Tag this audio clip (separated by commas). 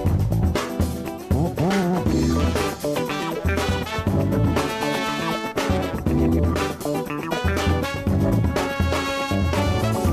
Music